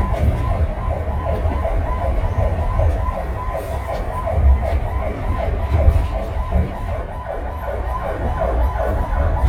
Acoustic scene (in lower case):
bus